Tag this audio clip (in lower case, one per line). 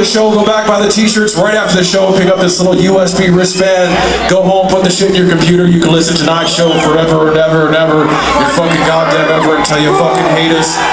speech